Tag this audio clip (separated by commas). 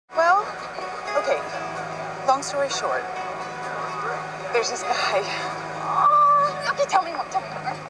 Music, Speech